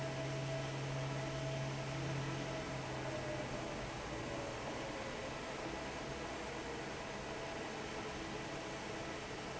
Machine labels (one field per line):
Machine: fan